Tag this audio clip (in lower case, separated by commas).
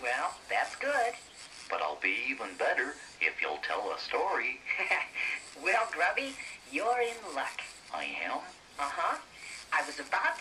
speech